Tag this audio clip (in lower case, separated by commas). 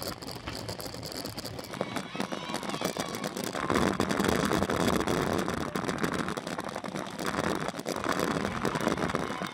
bicycle, vehicle